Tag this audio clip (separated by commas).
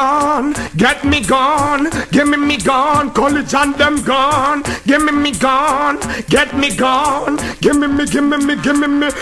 Music